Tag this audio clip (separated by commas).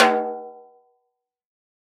Music, Drum, Musical instrument, Snare drum, Percussion